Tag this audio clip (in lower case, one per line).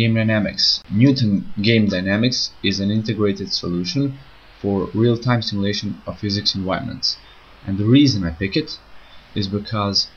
speech